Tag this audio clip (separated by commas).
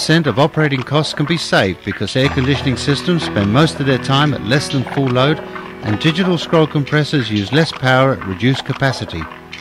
Music, Speech